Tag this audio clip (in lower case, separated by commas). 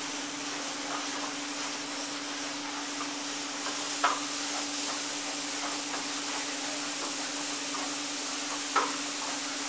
knock, tap, sliding door, car, vehicle